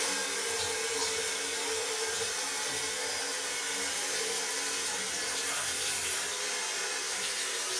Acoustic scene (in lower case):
restroom